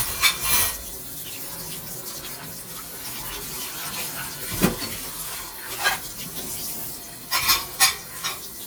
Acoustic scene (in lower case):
kitchen